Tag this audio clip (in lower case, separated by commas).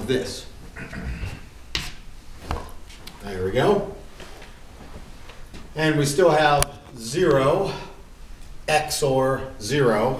inside a large room or hall, speech